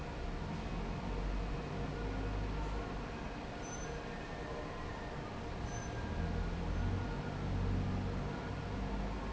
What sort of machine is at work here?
fan